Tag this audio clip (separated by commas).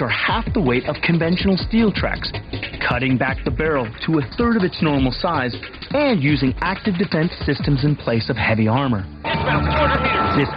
Music, Speech